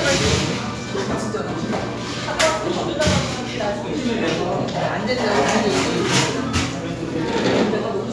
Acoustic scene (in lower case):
cafe